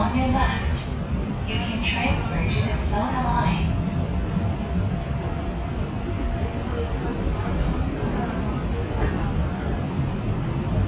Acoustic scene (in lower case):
subway train